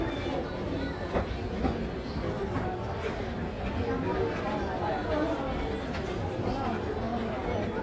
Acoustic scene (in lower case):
crowded indoor space